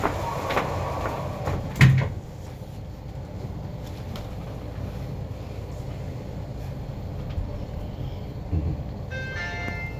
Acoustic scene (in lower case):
elevator